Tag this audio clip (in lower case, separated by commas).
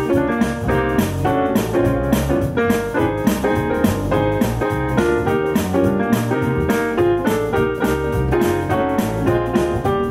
musical instrument, keyboard (musical), piano, music